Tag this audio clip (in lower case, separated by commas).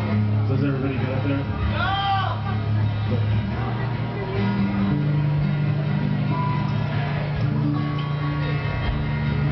music, speech